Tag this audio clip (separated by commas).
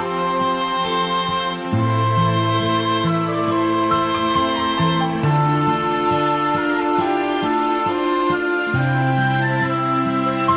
Music, Sad music